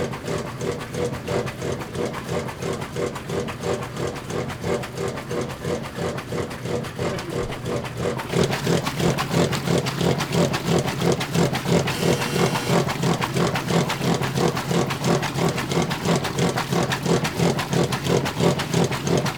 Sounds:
Engine

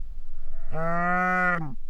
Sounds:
livestock, Animal

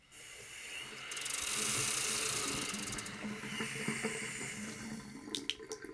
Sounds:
Hiss

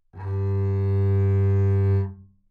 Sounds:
Music, Musical instrument, Bowed string instrument

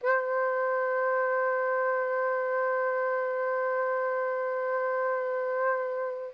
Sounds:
Music, Musical instrument, Wind instrument

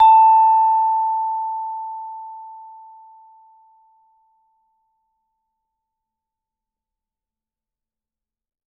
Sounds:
Percussion, Music, Musical instrument, Mallet percussion

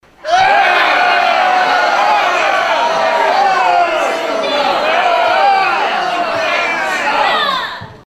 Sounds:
Crowd, Human group actions

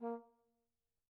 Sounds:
Brass instrument, Musical instrument, Music

